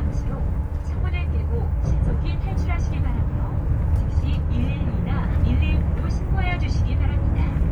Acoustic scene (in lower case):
bus